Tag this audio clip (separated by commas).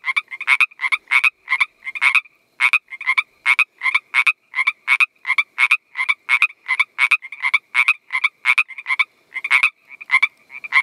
frog croaking